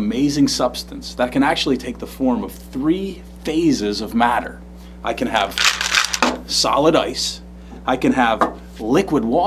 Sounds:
speech

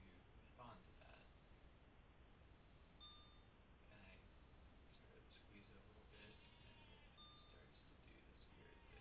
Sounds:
inside a small room, silence, speech, camera

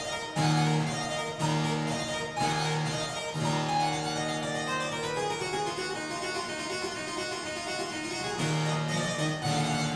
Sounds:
harpsichord, music

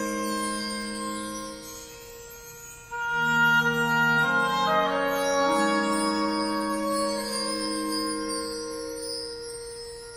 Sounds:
music

